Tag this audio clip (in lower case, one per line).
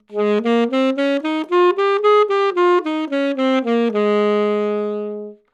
musical instrument
wind instrument
music